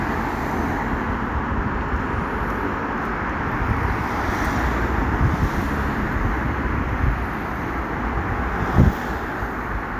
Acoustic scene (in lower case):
street